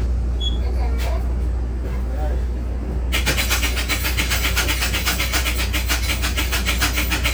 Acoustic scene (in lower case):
bus